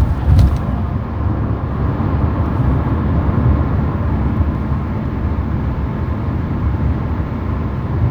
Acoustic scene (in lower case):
car